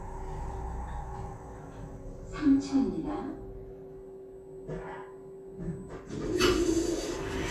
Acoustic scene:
elevator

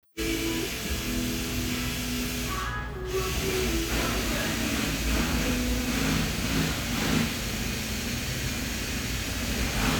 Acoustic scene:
cafe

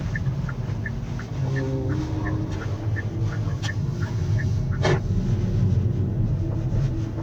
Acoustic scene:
car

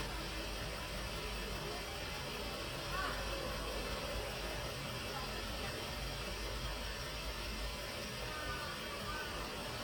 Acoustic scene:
residential area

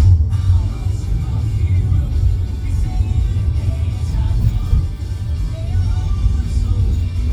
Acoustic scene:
car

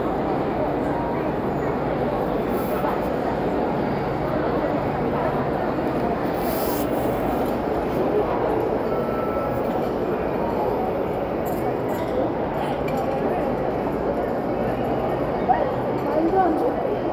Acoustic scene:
crowded indoor space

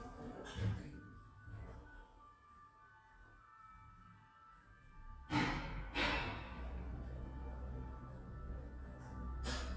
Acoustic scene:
elevator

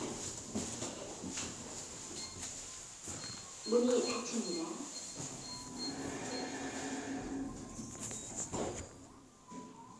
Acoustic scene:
elevator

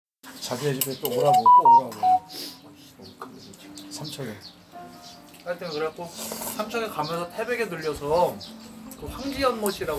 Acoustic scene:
restaurant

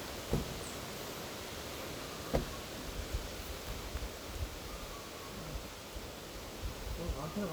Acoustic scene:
park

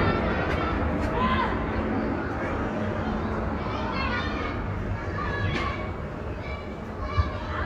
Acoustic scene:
residential area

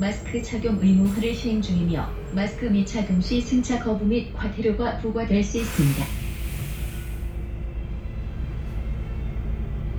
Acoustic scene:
bus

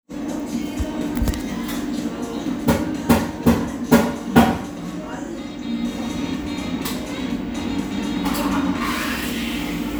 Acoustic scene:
cafe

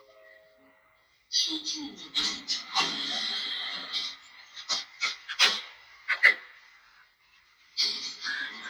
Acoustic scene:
elevator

